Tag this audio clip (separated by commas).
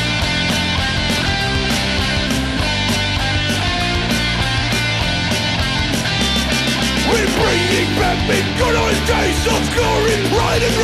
Music, Progressive rock